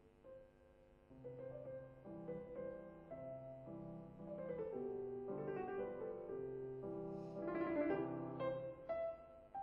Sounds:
Keyboard (musical), Piano

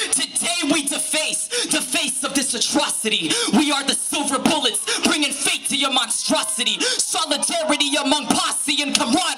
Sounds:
Speech

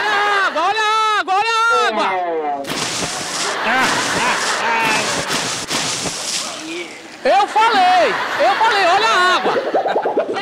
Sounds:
sloshing water

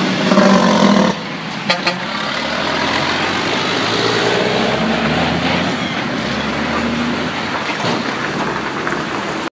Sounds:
Vehicle, Truck

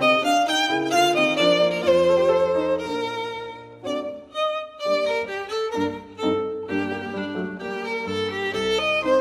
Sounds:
Musical instrument, Music, fiddle

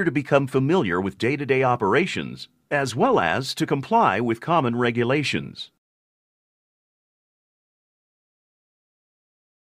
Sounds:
Speech

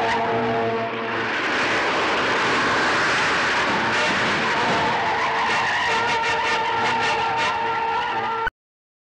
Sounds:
Car, Car passing by, Music, Vehicle

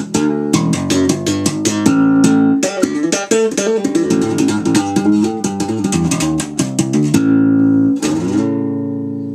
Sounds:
Plucked string instrument, Music, Bass guitar, Musical instrument, Guitar

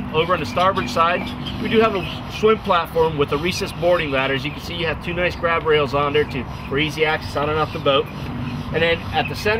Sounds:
speedboat, Speech

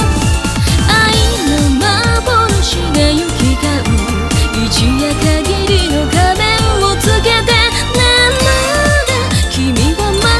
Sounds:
Music

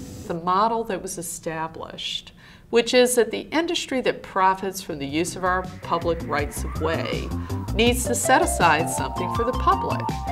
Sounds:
Speech, Music, inside a small room

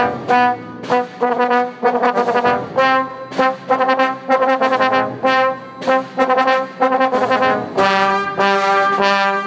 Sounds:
Brass instrument, Trumpet, playing trombone, Trombone

